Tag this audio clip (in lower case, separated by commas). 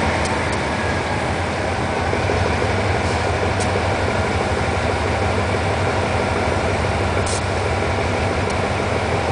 vehicle